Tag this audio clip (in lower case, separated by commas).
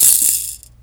rattle (instrument), percussion, rattle, music, musical instrument